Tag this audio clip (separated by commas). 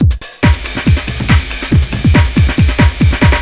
Drum kit, Musical instrument, Music, Percussion